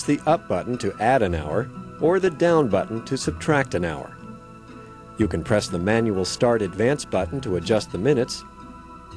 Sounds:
speech, music

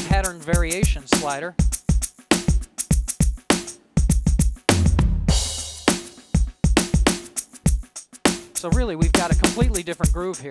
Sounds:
speech, music

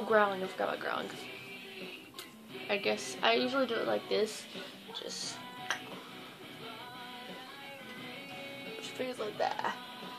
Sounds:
music, speech

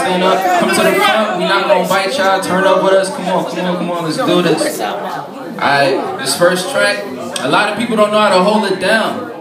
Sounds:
speech

